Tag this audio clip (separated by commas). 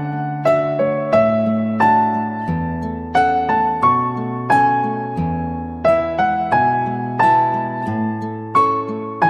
Music